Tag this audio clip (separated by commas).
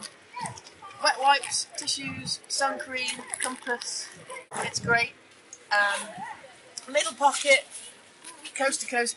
Speech